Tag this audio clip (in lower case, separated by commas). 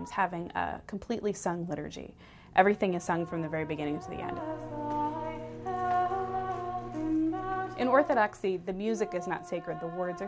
music, chant, speech, vocal music